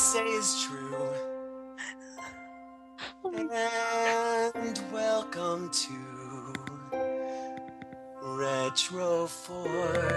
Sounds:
speech, music

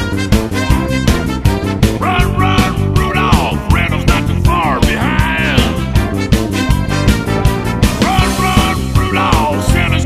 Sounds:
music

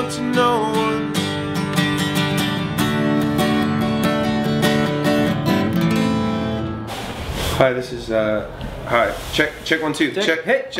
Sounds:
strum, music, singing

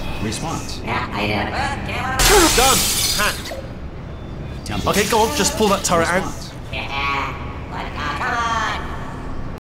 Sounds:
speech

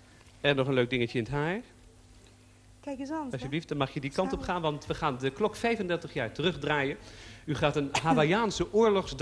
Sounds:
speech

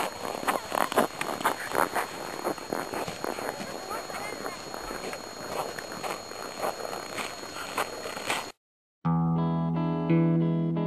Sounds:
music, speech

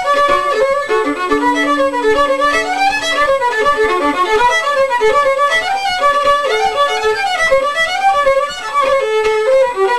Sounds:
bowed string instrument, fiddle

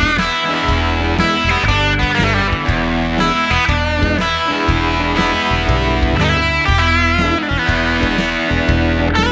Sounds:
plucked string instrument, musical instrument, electric guitar, music, strum, guitar

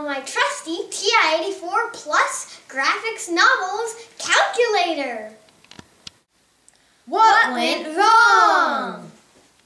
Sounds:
speech, inside a small room

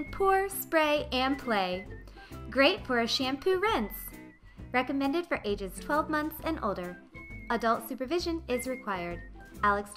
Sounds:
speech, music

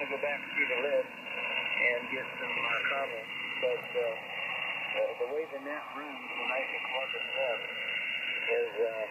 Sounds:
radio

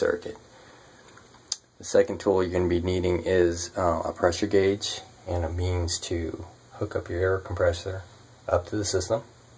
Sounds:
speech

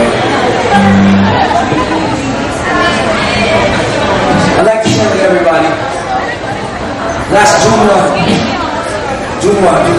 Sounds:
music, speech, inside a large room or hall, chatter

